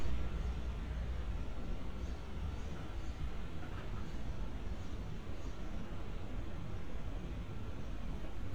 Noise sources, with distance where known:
background noise

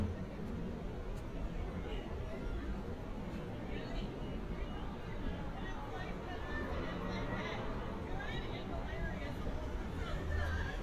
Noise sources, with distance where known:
person or small group talking

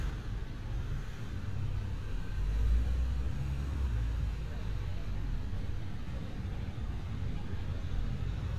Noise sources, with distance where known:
engine of unclear size

